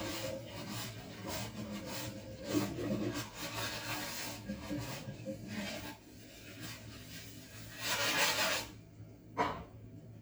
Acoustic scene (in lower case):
kitchen